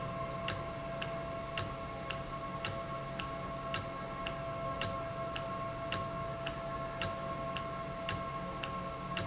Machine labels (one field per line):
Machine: valve